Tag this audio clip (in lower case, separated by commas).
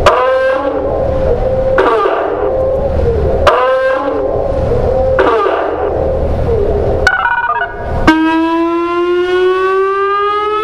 siren, civil defense siren